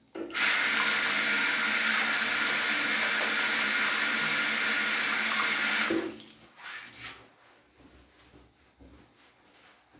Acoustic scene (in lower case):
restroom